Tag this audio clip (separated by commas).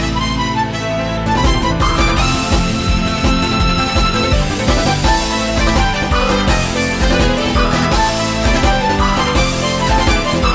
Music